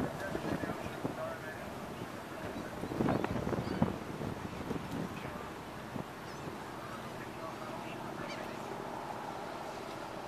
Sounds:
speech, motorboat, vehicle, boat

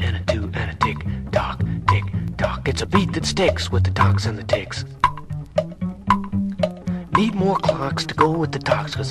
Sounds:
speech, music, tick

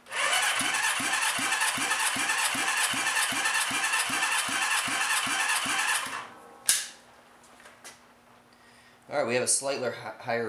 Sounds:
speech, inside a small room, engine

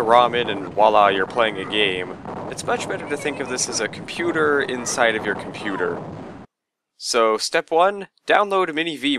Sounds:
speech

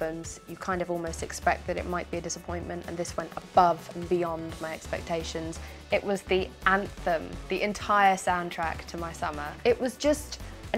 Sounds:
music, speech

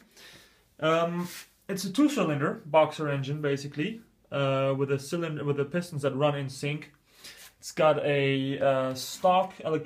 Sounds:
speech

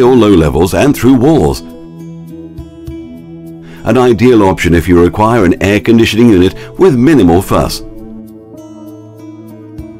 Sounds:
speech, music

